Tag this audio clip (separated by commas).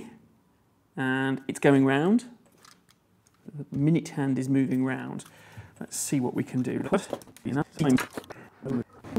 Speech